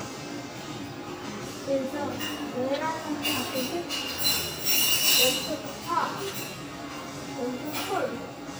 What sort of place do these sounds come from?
restaurant